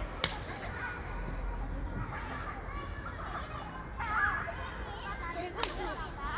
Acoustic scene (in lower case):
park